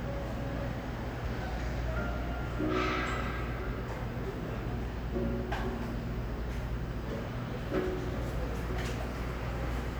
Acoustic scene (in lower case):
cafe